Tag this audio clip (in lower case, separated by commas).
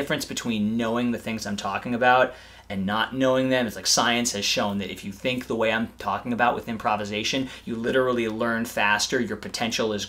speech